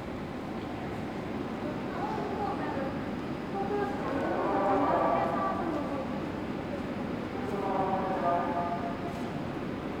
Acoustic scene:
subway station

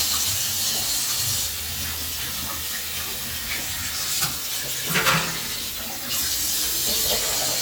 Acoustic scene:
restroom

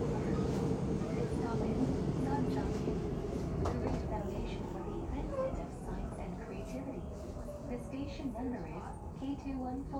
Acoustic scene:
subway train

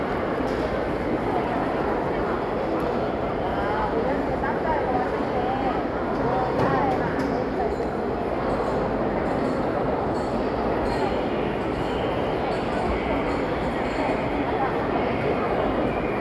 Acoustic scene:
crowded indoor space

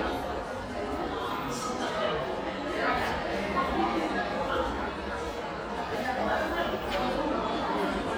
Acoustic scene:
crowded indoor space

